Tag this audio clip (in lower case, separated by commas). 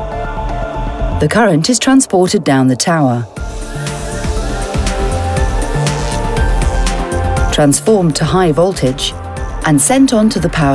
music, speech